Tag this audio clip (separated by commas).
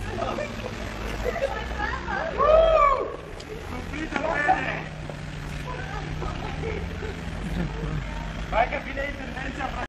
Speech